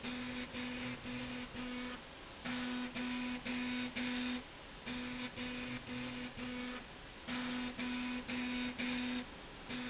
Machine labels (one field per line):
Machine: slide rail